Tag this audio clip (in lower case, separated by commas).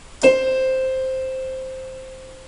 music, musical instrument, keyboard (musical), piano